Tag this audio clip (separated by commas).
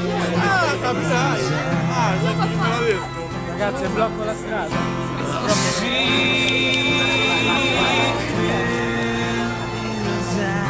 Speech, Music